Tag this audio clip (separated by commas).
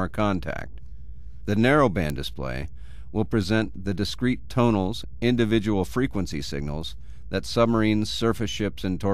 Speech